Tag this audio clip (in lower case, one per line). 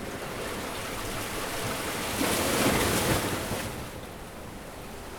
water
ocean
surf